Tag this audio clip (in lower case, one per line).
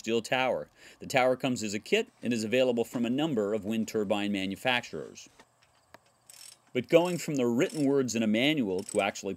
speech